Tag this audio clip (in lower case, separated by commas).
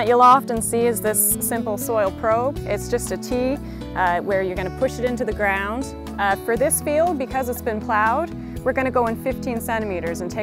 speech, music